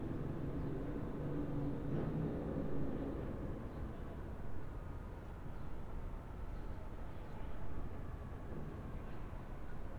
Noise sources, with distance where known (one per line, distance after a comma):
engine of unclear size, far